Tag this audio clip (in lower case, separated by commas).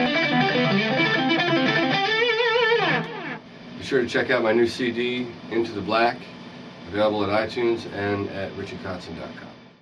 plucked string instrument, strum, music, guitar, speech, musical instrument, electric guitar